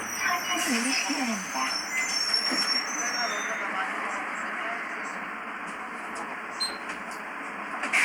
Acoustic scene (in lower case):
bus